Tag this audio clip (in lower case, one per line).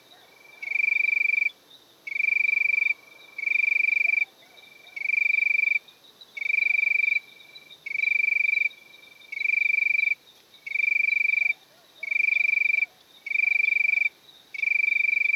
animal
cricket
wild animals
insect